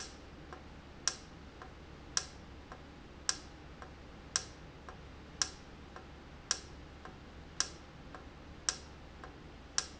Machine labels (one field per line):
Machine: valve